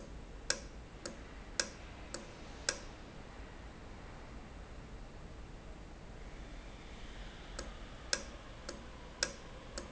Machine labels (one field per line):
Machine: valve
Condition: normal